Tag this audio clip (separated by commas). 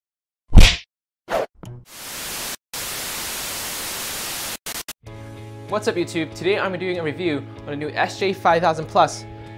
Speech, Music